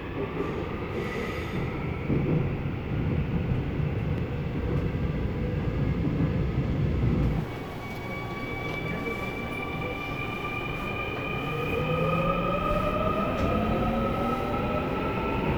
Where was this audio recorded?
on a subway train